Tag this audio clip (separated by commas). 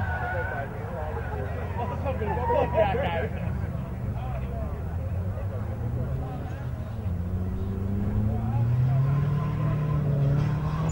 Race car, Vehicle, Speech, Car passing by, Car